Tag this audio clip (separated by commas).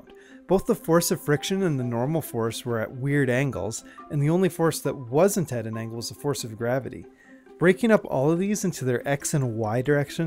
monologue